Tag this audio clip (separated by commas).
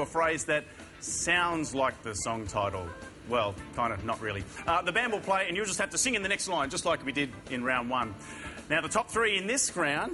Music, Speech